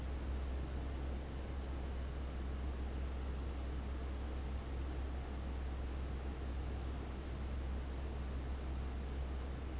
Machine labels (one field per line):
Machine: fan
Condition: abnormal